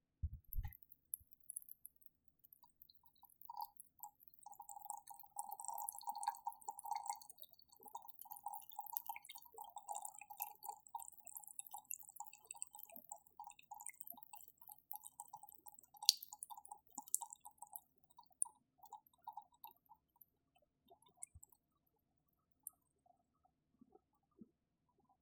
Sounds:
dribble, Liquid, Pour, splatter

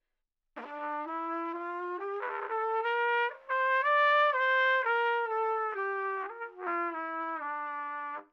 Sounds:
Trumpet, Musical instrument, Brass instrument, Music

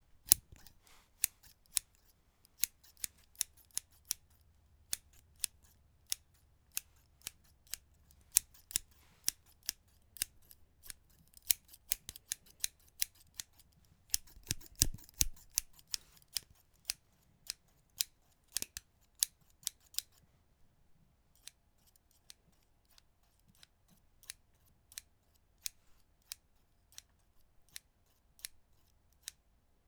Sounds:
Scissors, home sounds

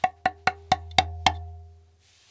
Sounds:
Music, Musical instrument, Percussion, Tap

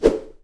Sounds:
swoosh

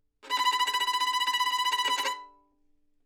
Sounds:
Music, Musical instrument, Bowed string instrument

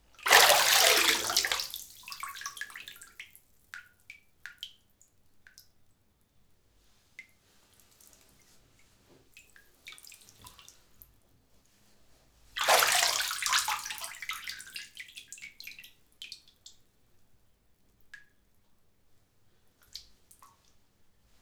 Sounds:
Bathtub (filling or washing), home sounds

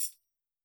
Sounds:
Percussion, Music, Musical instrument, Tambourine

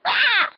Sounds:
Animal

